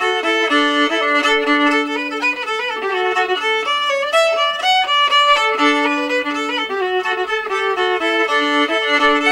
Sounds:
Musical instrument, Music, Violin

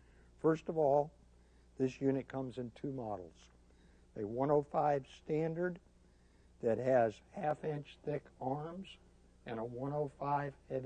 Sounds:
Speech

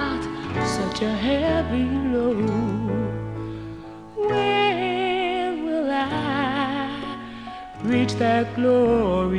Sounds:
Music

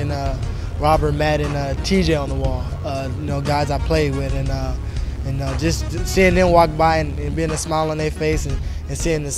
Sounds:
Speech, Music

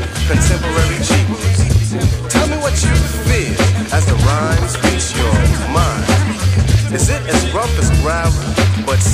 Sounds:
Speech, Music

